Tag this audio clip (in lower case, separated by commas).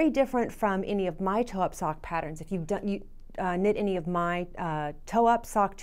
speech